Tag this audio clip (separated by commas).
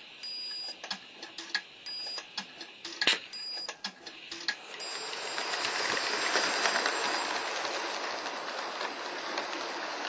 Train, Rail transport